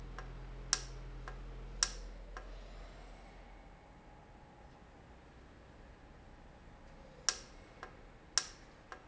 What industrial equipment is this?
valve